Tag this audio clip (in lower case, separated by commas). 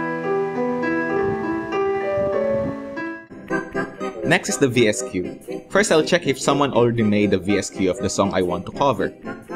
electronic organ, organ